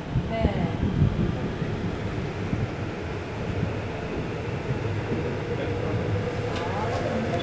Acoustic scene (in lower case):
subway train